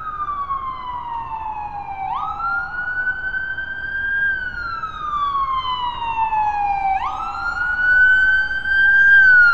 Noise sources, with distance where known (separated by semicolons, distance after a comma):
siren, near